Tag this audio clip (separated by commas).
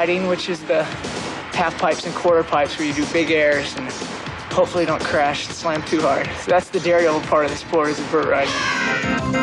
Music, Speech